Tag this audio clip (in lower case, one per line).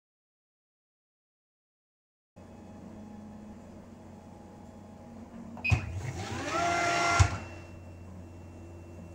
inside a small room
silence